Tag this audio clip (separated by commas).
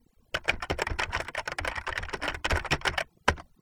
Typing, home sounds